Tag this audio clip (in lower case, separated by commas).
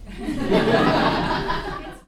human voice, laughter